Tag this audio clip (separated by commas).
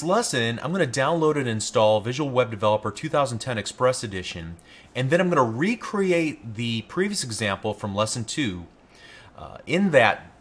Speech